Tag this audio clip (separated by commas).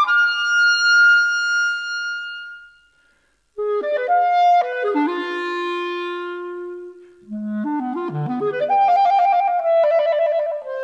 Musical instrument, playing clarinet, Wind instrument, Music, Classical music, Clarinet